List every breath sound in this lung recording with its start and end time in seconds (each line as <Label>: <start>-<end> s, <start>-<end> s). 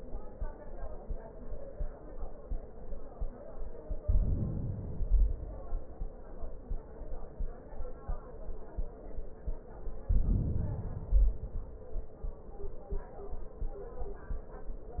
Inhalation: 4.03-4.91 s, 9.99-11.05 s
Exhalation: 4.93-6.26 s, 11.09-12.24 s